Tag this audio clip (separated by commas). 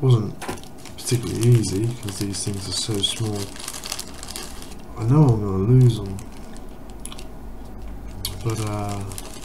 Speech